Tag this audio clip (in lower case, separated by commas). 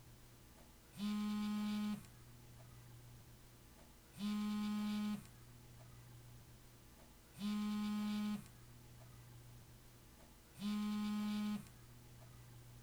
telephone, alarm